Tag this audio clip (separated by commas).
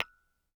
Tap